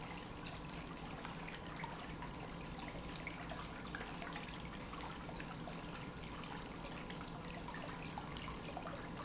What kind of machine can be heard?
pump